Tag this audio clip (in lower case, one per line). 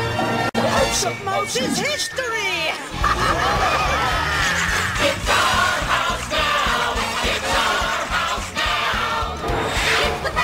music